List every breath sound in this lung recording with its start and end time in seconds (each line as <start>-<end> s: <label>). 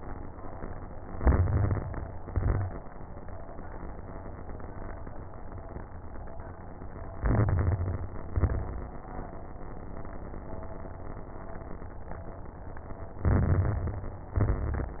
1.02-2.09 s: inhalation
1.02-2.09 s: crackles
2.13-2.85 s: exhalation
2.13-2.85 s: crackles
7.12-8.19 s: inhalation
7.12-8.19 s: crackles
8.28-9.01 s: exhalation
8.28-9.01 s: crackles
13.21-14.27 s: inhalation
13.21-14.27 s: crackles
14.35-15.00 s: exhalation
14.35-15.00 s: crackles